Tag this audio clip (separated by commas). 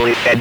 Speech, Human voice